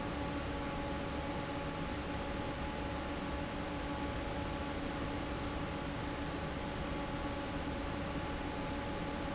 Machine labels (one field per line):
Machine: fan